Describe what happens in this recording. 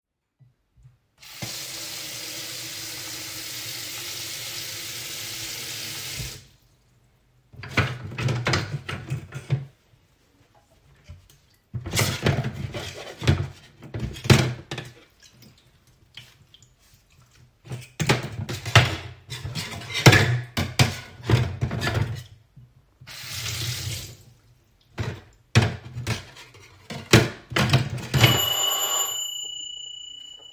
I let some water run into the sink, and started to clean some cutlery. Then I turned the water on and off again once more. I continued to clean the cutlery when the doorbell rang.